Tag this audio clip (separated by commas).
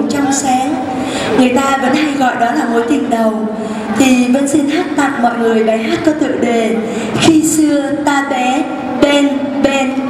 Speech